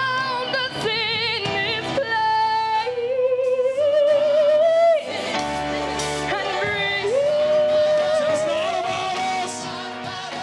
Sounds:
Gospel music, Singing, Choir, Music, Opera

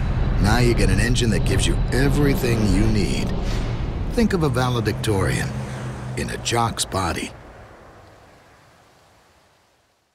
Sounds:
Medium engine (mid frequency), Engine, Vehicle, Speech

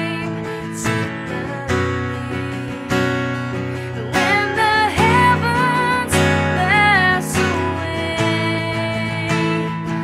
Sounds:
Music

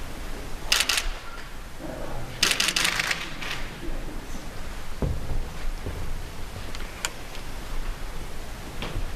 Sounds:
Speech

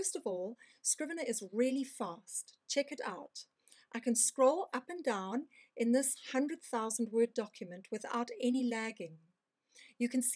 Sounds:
Speech

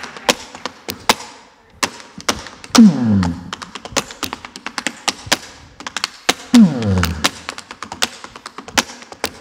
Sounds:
tap dancing

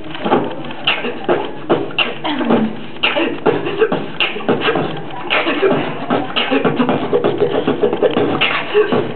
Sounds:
Beatboxing

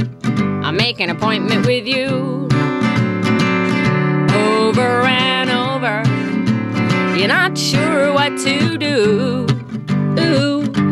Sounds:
Radio, Music

